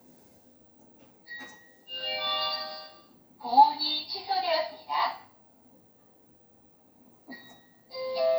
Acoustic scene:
kitchen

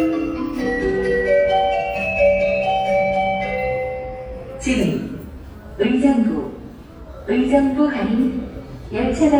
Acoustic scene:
subway station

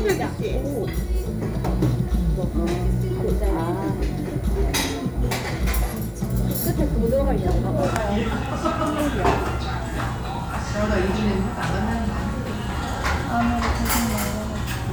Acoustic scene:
restaurant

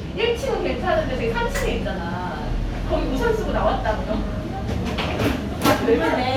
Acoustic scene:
cafe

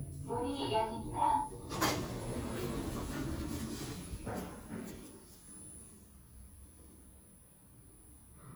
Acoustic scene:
elevator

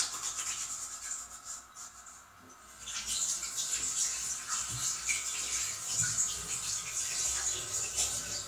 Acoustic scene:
restroom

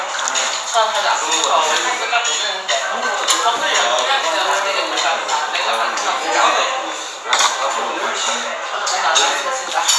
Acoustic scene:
restaurant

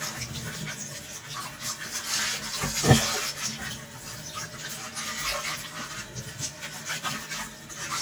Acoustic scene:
kitchen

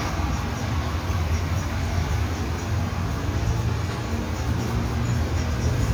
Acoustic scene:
street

